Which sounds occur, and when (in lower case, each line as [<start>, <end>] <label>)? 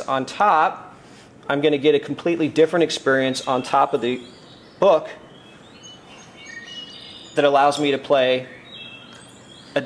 [0.01, 9.85] background noise
[0.03, 0.94] male speech
[1.39, 4.34] male speech
[4.76, 5.24] male speech
[7.30, 8.54] male speech
[9.69, 9.85] male speech